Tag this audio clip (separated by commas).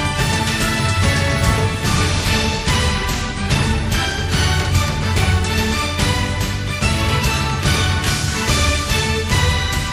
Exciting music, Music